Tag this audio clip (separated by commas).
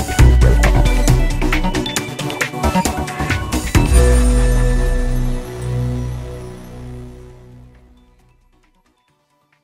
Music